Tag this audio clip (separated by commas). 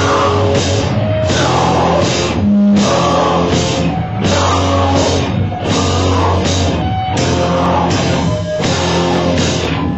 Music, Heavy metal, Rock music